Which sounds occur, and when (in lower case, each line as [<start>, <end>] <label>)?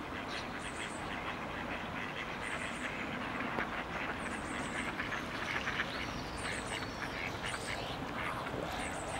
[0.00, 9.15] mechanisms
[8.56, 9.15] tweet